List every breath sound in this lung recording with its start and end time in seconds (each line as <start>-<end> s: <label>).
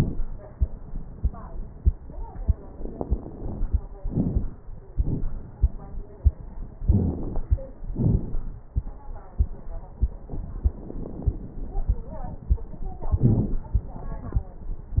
2.77-3.84 s: inhalation
2.77-3.84 s: crackles
4.00-4.64 s: exhalation
4.00-4.64 s: crackles
6.87-7.64 s: inhalation
6.87-7.64 s: crackles
7.92-8.57 s: exhalation
7.92-8.57 s: crackles
10.35-11.86 s: inhalation
10.35-11.86 s: crackles
13.05-13.70 s: exhalation
13.05-13.70 s: crackles